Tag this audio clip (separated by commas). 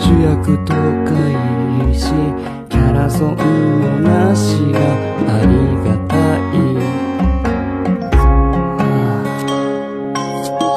Music, Male singing